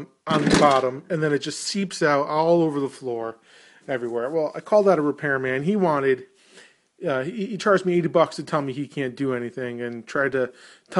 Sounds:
speech

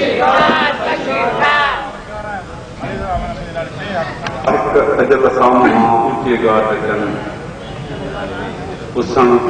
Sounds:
man speaking
monologue
speech

